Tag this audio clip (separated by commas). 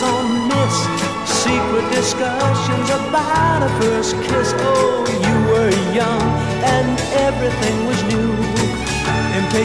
Music